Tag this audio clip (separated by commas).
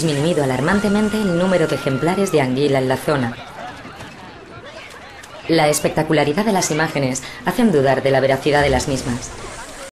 Speech